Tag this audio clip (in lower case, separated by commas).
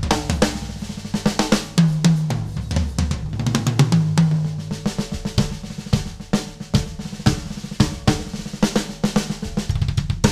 playing drum kit, snare drum, drum, musical instrument, drum kit, music